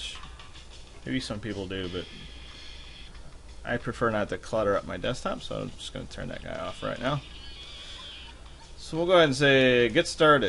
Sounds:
music, speech, inside a small room

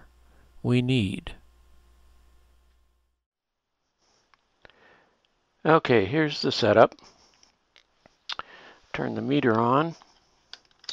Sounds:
speech

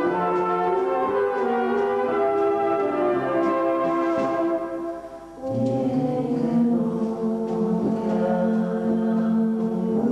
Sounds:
music

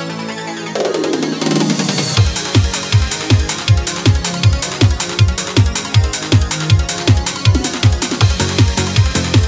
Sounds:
music

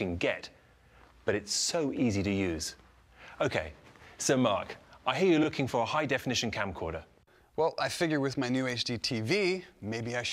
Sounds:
speech

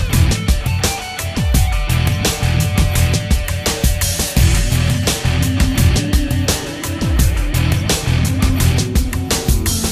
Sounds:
theme music, funk, music

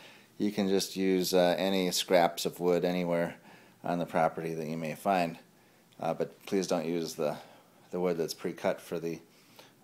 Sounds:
speech

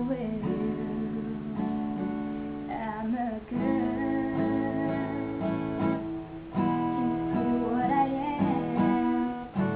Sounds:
acoustic guitar, female singing, guitar, music, musical instrument, plucked string instrument

